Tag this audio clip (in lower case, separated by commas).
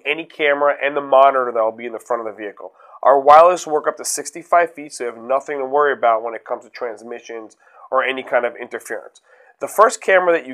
speech